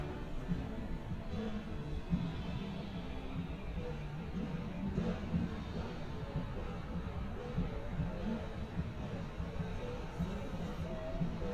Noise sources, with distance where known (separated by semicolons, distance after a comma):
music from a fixed source, near